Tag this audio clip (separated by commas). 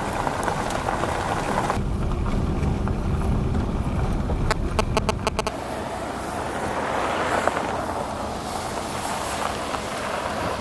Vehicle